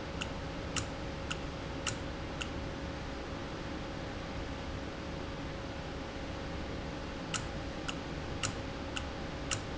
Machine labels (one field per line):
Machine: valve